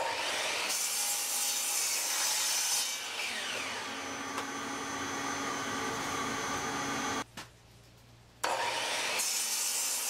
An electric saw is cutting wood